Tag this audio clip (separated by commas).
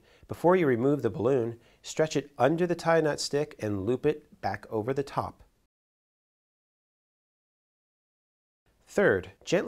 Speech